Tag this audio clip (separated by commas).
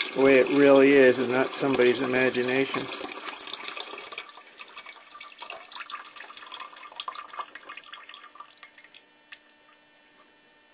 Speech